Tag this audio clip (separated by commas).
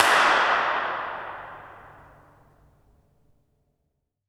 Clapping, Hands